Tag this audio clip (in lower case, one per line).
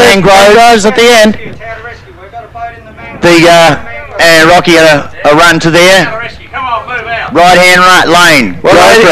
speech